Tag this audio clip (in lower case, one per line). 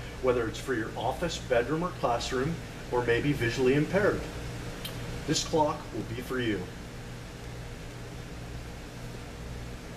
speech